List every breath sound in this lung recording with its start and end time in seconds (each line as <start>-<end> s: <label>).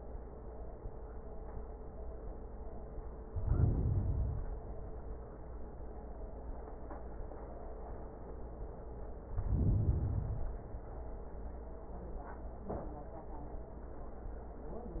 3.27-4.51 s: inhalation
9.28-10.67 s: inhalation